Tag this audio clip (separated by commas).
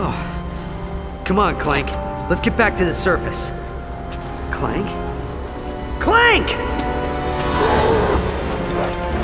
Speech, Music